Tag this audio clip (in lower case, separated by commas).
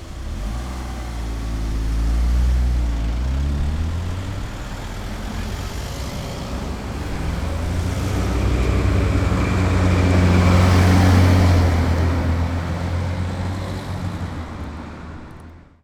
vehicle, motor vehicle (road), traffic noise